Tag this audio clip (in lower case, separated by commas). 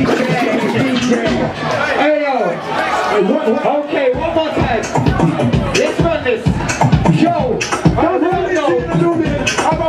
speech